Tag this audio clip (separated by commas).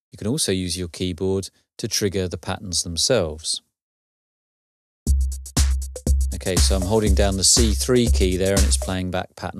Speech, Music